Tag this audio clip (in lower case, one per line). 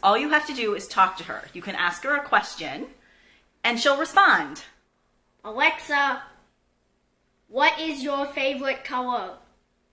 speech